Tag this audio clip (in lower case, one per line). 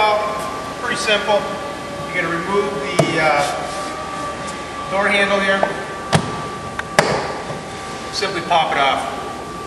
speech